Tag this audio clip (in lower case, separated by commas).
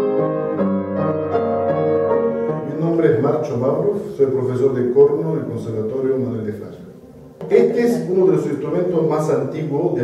music, speech